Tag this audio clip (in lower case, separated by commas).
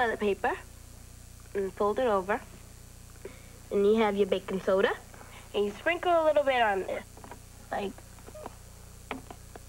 speech